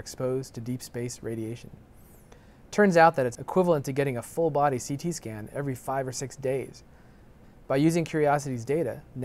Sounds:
Speech

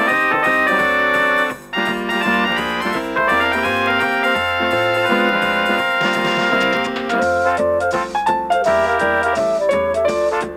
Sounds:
Music, Funny music, Independent music

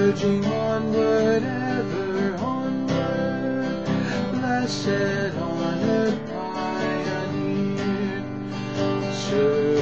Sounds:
Music, Guitar, Musical instrument, Acoustic guitar

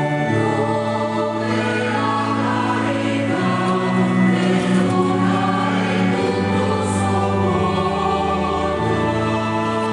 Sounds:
Music

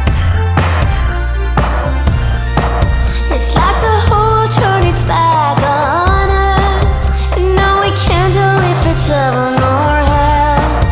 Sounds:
Music

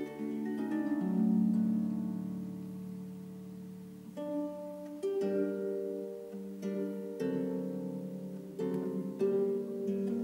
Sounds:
Harp, playing harp, Pizzicato

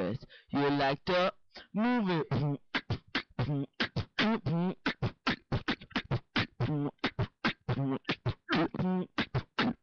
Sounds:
Beatboxing, Speech

